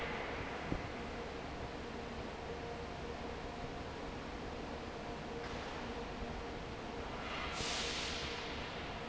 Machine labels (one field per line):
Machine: fan